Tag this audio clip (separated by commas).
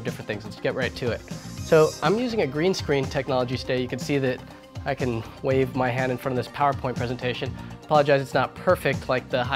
Music, Speech